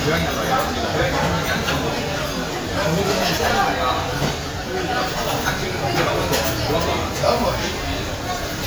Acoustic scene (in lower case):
crowded indoor space